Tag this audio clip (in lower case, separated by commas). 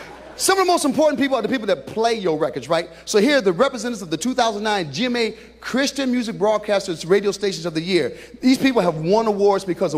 speech